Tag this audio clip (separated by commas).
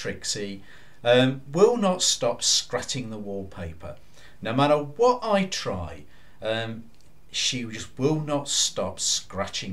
Speech